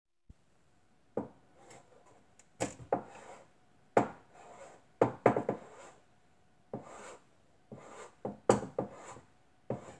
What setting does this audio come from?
kitchen